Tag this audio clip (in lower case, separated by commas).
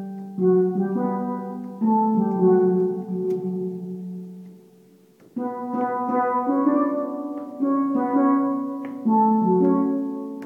musical instrument, steelpan, music